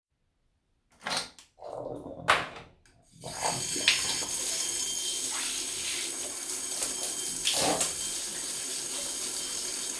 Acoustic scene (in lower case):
restroom